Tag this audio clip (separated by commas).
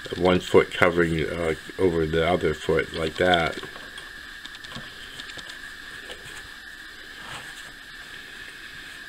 Speech, inside a small room